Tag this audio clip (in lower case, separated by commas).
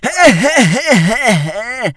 human voice, laughter